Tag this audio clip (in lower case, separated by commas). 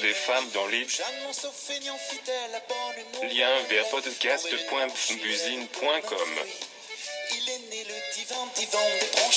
speech, music